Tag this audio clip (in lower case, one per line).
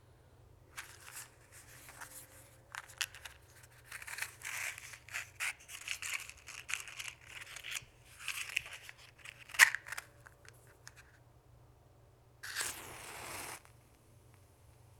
fire